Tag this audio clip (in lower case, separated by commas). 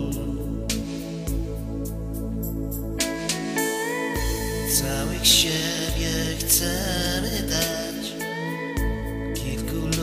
guitar, music, strum, musical instrument, plucked string instrument